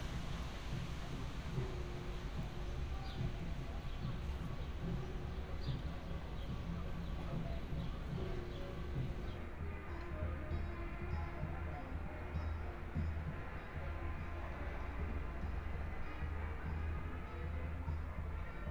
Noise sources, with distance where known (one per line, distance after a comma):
music from an unclear source, far